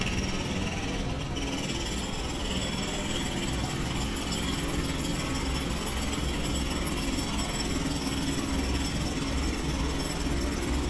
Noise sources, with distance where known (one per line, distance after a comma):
jackhammer, near